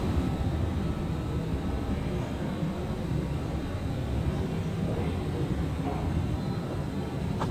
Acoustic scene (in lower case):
subway station